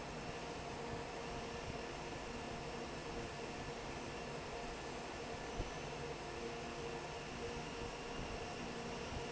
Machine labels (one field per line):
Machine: fan